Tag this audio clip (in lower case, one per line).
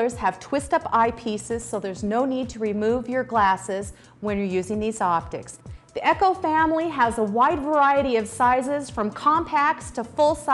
speech
music